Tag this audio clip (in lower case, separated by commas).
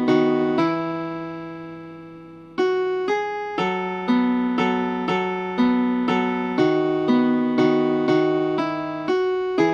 strum, music, guitar, plucked string instrument, musical instrument